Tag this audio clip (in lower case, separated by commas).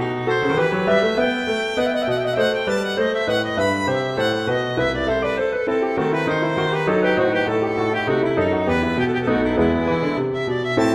musical instrument, music